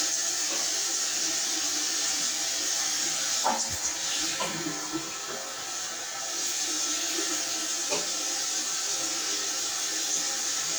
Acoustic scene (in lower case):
restroom